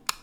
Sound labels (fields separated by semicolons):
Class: switch; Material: plastic